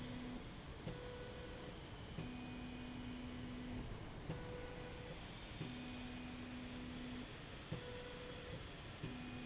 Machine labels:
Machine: slide rail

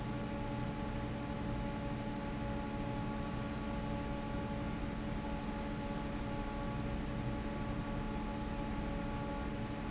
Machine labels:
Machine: fan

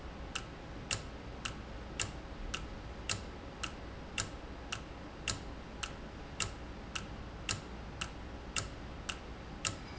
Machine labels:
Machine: valve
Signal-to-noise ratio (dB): 0 dB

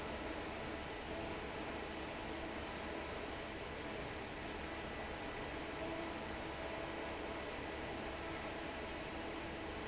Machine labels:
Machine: fan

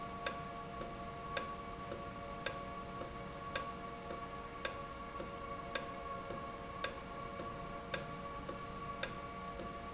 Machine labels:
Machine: valve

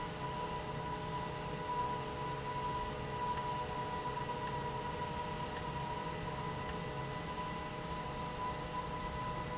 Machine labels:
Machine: valve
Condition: abnormal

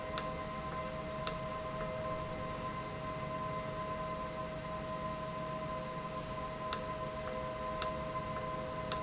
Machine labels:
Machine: valve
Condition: normal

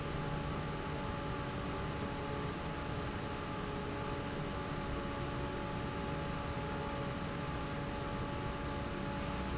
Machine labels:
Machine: fan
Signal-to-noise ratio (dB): -6 dB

